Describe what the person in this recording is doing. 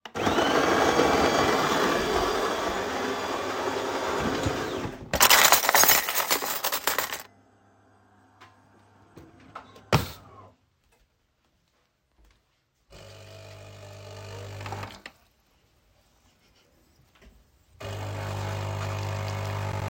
I started the coffee machine and opened a kitchen drawer. I took out a spoon and placed it on the counter.